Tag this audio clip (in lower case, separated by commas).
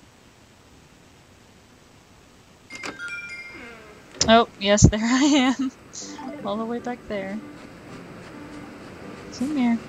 music, speech, silence